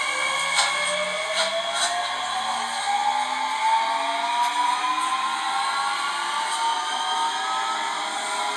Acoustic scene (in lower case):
subway train